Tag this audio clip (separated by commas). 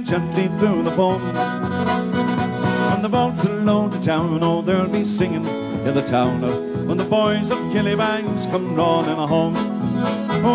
Accordion